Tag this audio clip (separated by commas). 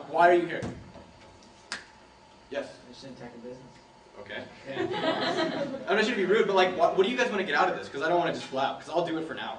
Conversation, man speaking, Speech, monologue